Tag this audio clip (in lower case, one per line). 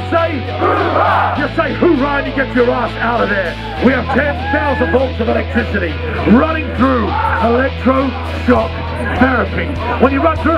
music
outside, urban or man-made
speech